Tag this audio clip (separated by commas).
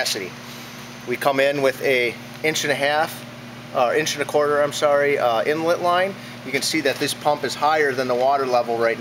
Speech